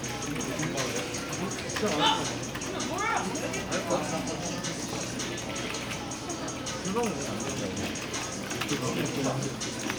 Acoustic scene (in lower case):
crowded indoor space